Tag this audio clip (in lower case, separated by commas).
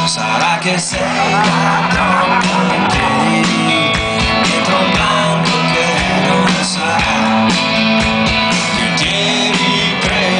music, speech